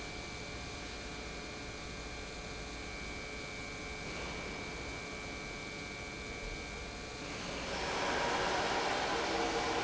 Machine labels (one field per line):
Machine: pump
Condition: normal